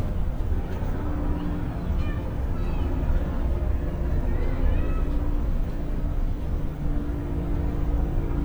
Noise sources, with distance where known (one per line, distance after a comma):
engine of unclear size